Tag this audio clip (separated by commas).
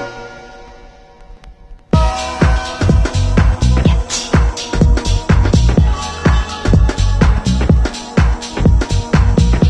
Musical instrument, Music